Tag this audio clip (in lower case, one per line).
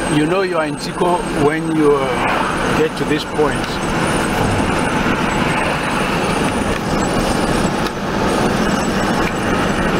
vehicle
speech
car